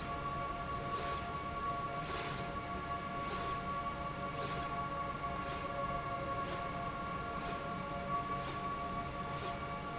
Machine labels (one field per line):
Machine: slide rail